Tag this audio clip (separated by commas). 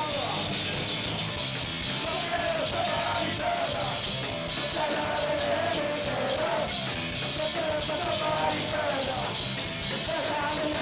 Music